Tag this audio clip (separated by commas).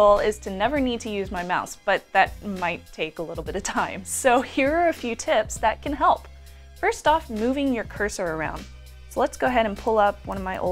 Music, Speech